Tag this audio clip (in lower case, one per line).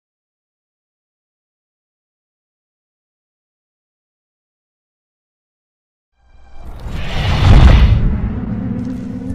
silence